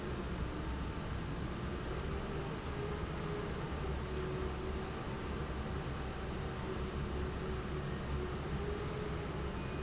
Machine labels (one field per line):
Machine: fan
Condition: normal